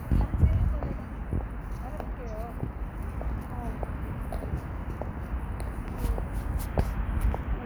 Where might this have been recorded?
in a residential area